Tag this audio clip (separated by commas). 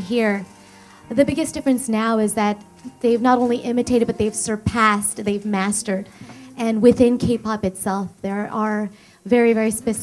Speech